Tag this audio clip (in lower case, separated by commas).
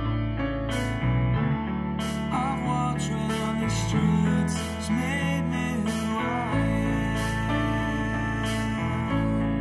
music